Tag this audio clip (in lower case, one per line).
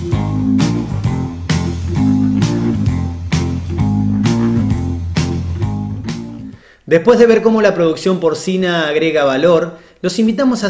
music
speech